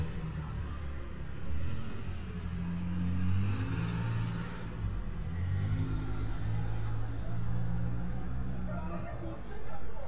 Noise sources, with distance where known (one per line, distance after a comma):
medium-sounding engine, near
person or small group talking, near